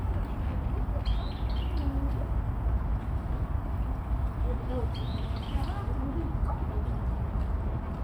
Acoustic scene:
park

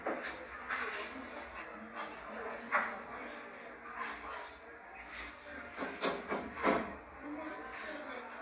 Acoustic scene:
cafe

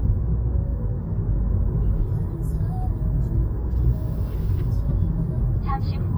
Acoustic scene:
car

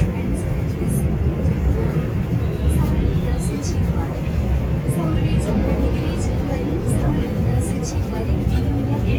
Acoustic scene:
subway train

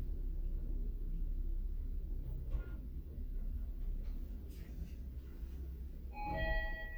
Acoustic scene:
elevator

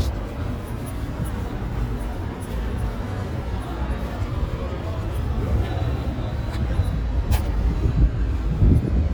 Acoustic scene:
residential area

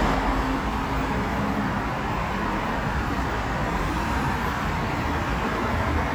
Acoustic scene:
street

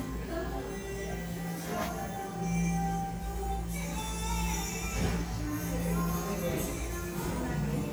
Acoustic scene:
cafe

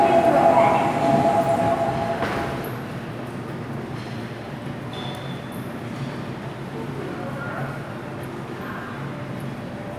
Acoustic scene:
subway station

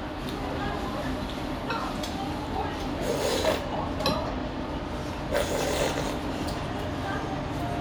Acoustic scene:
restaurant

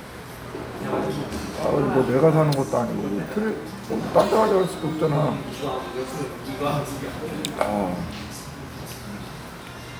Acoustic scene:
crowded indoor space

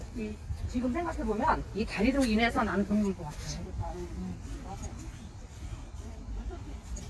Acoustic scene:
park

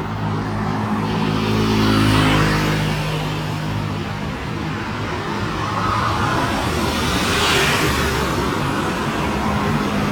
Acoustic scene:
street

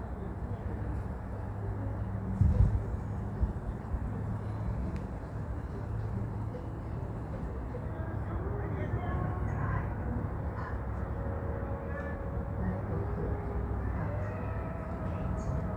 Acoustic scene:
residential area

